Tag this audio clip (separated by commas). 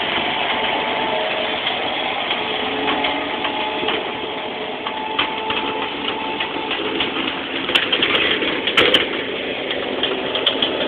Vehicle